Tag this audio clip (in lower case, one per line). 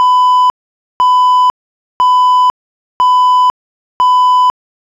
alarm